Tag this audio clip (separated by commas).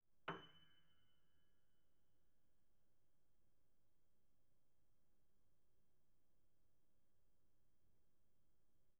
Musical instrument, Keyboard (musical), Music, Piano